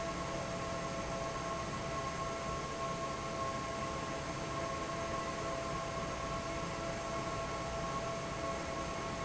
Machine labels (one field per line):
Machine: fan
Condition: normal